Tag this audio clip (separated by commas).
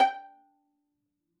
Musical instrument, Music, Bowed string instrument